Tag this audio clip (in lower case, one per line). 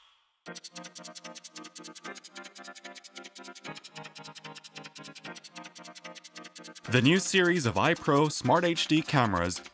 music
speech